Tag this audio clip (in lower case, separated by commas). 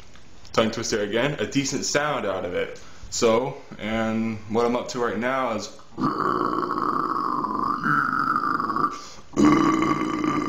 speech, man speaking